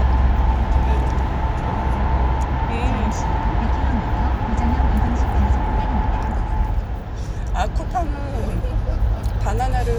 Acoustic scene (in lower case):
car